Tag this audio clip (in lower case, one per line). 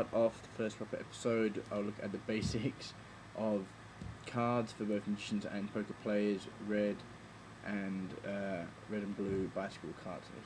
speech